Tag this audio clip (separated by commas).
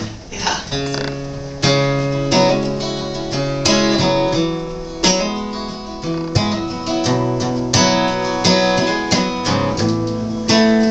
Speech, Music